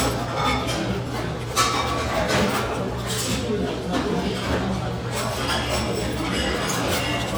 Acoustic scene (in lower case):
restaurant